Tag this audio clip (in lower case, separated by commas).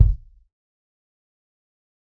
drum, musical instrument, bass drum, percussion, music